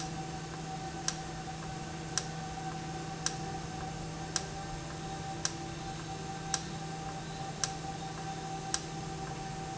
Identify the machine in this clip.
valve